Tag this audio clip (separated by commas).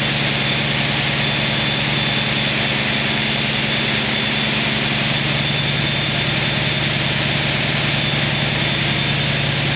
Engine, Heavy engine (low frequency), Idling